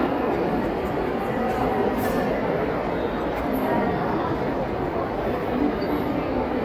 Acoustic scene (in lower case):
crowded indoor space